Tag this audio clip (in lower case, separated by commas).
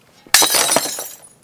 shatter, glass